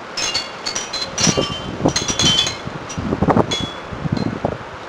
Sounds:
Bell, Wind, Chime, Wind chime

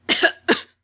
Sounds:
Respiratory sounds, Human voice, Cough

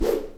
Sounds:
Whoosh

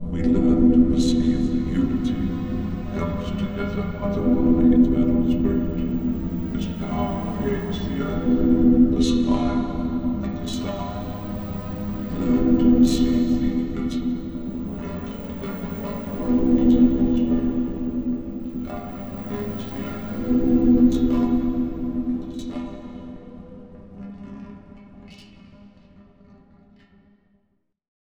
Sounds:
Human voice

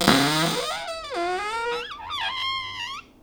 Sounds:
Cupboard open or close, home sounds

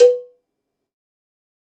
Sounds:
Bell, Cowbell

